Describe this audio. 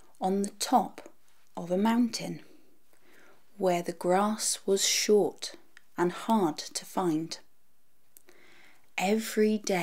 A woman is speaking